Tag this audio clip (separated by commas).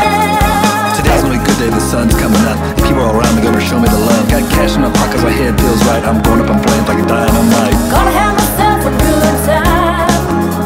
Music